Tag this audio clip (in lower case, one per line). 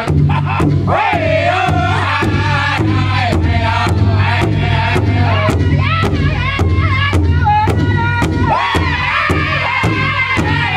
music